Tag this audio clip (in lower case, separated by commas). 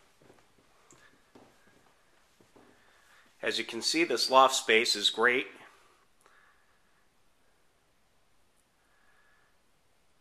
inside a large room or hall, speech